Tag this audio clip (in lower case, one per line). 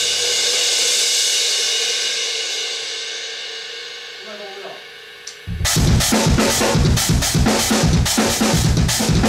music
speech